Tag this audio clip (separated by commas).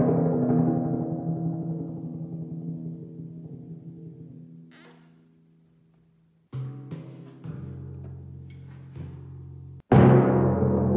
playing tympani